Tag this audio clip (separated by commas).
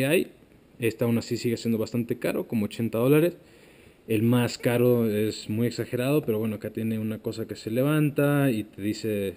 Speech